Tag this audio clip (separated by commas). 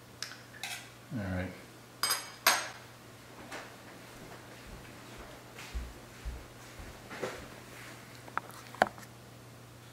silverware